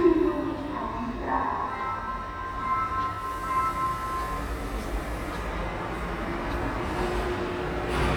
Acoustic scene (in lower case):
subway station